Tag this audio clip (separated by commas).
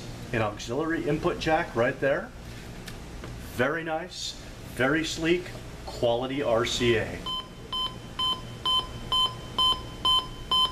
Speech